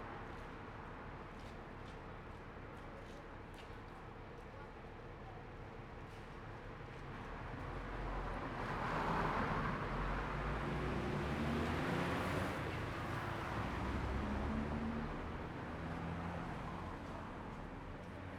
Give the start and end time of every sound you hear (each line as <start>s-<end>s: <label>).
0.0s-1.5s: car
0.0s-1.5s: car wheels rolling
0.0s-8.3s: bus engine idling
0.0s-17.0s: bus
5.9s-6.2s: bus compressor
7.5s-10.4s: car
7.5s-10.4s: car wheels rolling
8.3s-17.0s: bus engine accelerating
11.2s-13.7s: motorcycle
11.2s-13.7s: motorcycle engine idling
12.9s-15.3s: car
12.9s-15.3s: car wheels rolling
15.9s-18.4s: car
15.9s-18.4s: car wheels rolling